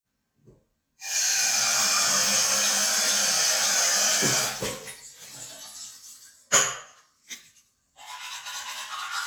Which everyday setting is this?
restroom